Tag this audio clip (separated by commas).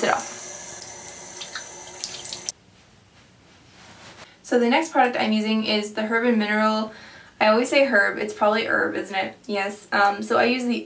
inside a small room, Speech, faucet